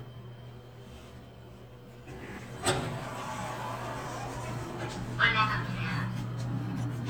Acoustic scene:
elevator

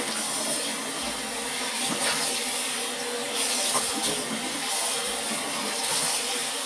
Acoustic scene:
restroom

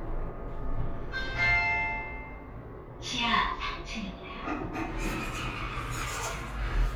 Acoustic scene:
elevator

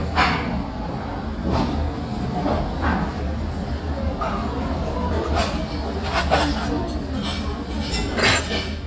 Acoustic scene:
restaurant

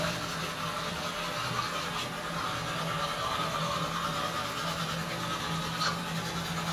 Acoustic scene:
restroom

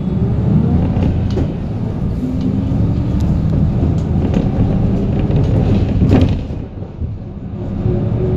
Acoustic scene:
bus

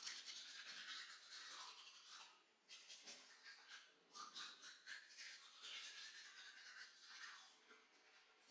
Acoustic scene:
restroom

